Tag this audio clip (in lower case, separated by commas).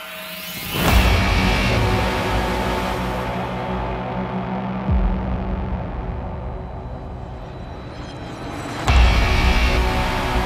music